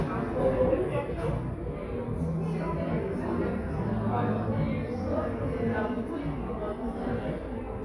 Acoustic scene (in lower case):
cafe